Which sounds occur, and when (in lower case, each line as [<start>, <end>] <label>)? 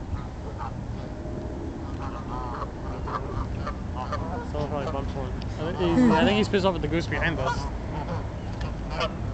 [0.00, 9.33] background noise
[0.00, 9.33] wind
[4.50, 7.68] conversation
[5.56, 7.61] man speaking
[5.95, 6.46] human sounds
[8.35, 8.72] bird song
[8.53, 8.69] bird flight
[8.55, 8.70] generic impact sounds